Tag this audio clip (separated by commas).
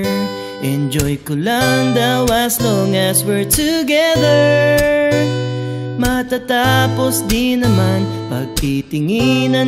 Music